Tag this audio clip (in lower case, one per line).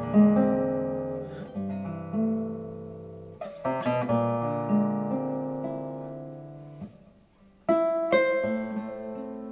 plucked string instrument
guitar
acoustic guitar
music
musical instrument
strum